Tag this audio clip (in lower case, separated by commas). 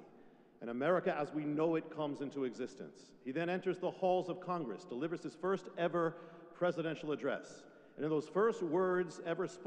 man speaking, monologue, speech